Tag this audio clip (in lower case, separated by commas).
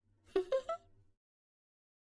laughter, human voice